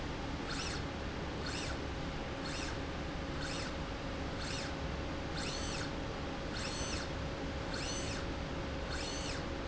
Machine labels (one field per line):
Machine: slide rail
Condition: normal